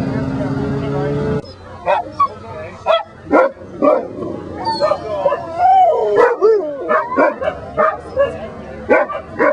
People are talking, dogs are barking